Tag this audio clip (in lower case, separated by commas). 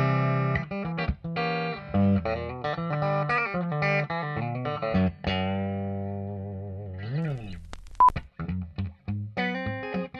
music, musical instrument, guitar, plucked string instrument, distortion